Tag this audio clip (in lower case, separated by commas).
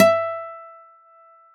musical instrument, acoustic guitar, guitar, plucked string instrument, music